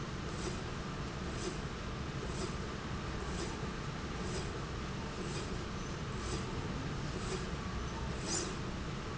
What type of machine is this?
slide rail